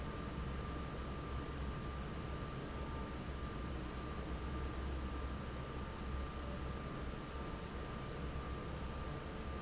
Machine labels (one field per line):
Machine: fan